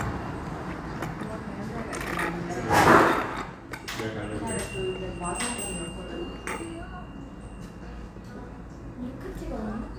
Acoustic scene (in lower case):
cafe